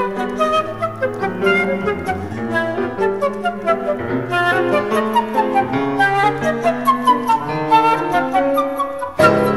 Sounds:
piano
playing piano
musical instrument
classical music
music
woodwind instrument
flute

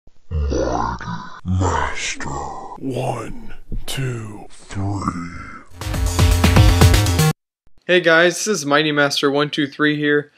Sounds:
inside a small room
speech
music

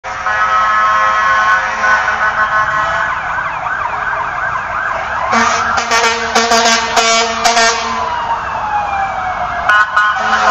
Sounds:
emergency vehicle
car
vehicle
air horn
outside, urban or man-made

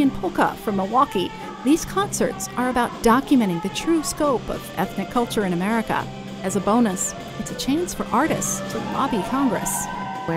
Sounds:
speech
happy music
music

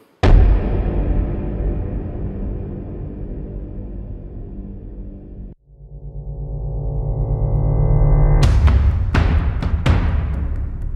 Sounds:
music

